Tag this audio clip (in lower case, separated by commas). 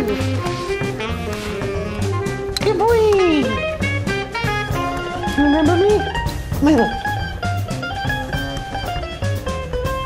speech, music